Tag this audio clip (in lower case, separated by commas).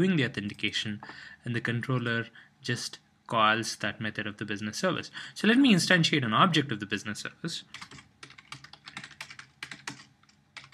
speech